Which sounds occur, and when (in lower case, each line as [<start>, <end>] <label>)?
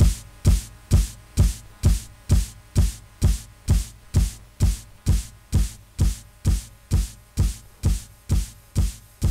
[0.00, 9.30] background noise
[0.00, 9.30] music